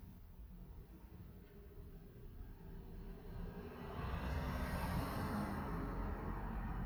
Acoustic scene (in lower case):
residential area